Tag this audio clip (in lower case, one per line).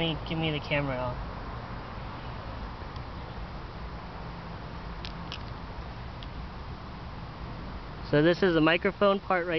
speech